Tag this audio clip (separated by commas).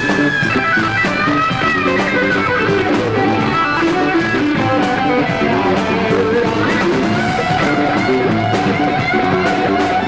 Music